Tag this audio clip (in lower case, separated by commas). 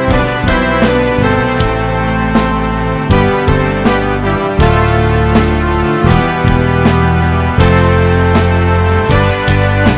music